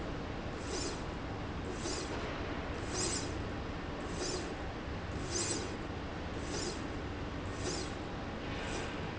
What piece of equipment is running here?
slide rail